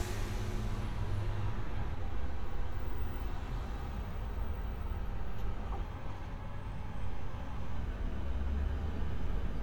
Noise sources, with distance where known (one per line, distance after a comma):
engine of unclear size, far